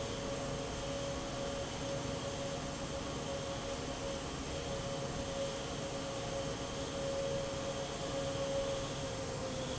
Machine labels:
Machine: fan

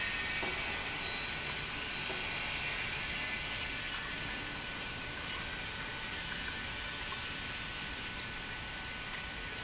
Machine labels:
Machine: pump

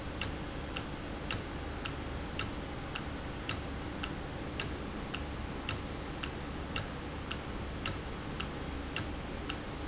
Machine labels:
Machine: valve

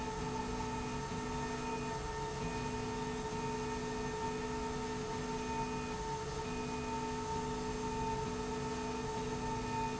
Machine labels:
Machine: slide rail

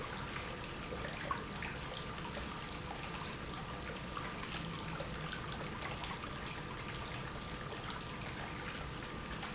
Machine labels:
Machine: pump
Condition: normal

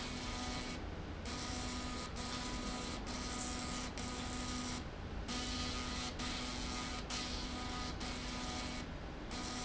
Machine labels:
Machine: slide rail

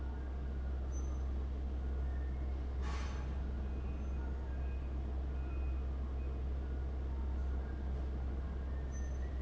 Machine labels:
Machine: fan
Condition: abnormal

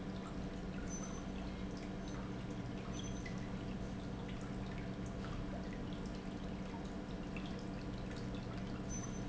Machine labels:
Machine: pump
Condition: normal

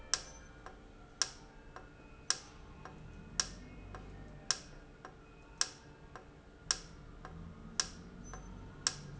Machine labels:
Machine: valve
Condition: normal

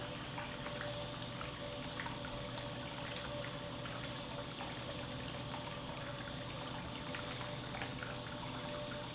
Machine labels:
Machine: pump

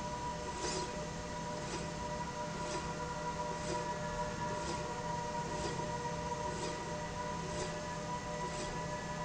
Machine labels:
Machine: slide rail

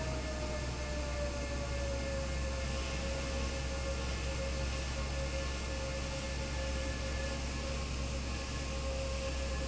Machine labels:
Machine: fan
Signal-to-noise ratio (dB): -6 dB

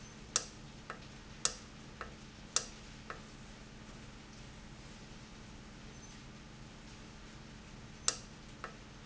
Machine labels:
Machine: valve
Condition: normal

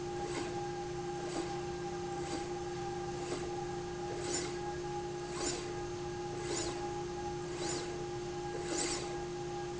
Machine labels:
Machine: slide rail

